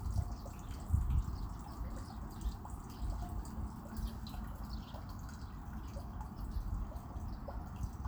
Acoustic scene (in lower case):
park